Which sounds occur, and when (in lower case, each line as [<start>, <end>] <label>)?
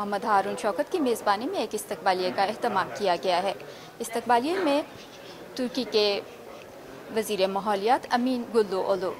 [0.00, 3.53] female speech
[0.00, 9.15] background noise
[3.55, 3.98] breathing
[3.91, 4.88] female speech
[4.83, 5.47] breathing
[5.53, 6.25] female speech
[6.21, 6.62] breathing
[7.12, 9.15] female speech